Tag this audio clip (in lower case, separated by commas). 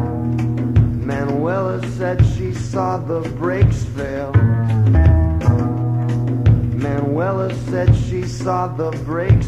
music